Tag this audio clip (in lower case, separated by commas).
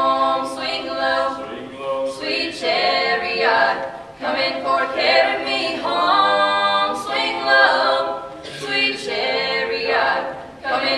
singing, a capella, vocal music